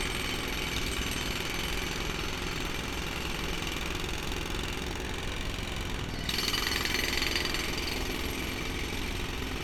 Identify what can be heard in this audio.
jackhammer